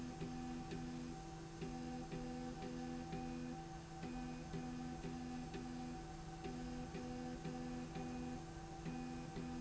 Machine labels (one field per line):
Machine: slide rail